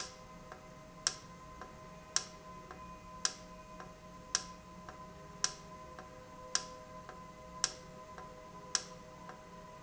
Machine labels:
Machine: valve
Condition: normal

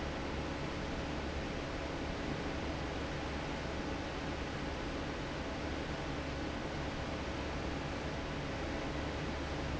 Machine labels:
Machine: fan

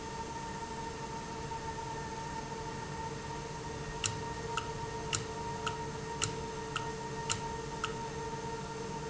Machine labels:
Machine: valve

